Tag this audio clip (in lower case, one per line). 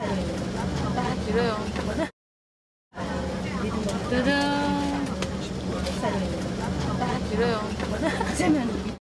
speech